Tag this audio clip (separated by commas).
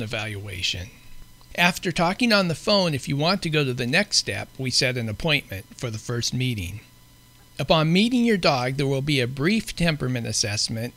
Speech